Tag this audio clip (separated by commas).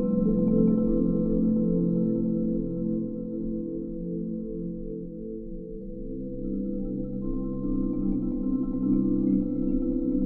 Musical instrument, Percussion, Vibraphone, Music, xylophone